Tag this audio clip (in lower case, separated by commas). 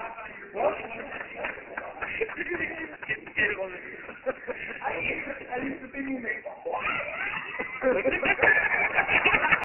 speech